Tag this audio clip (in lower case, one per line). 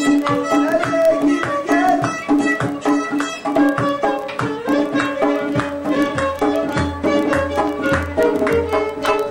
music
violin
musical instrument